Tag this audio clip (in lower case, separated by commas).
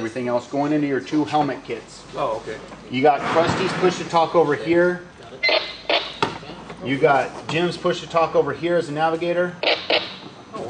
speech, inside a small room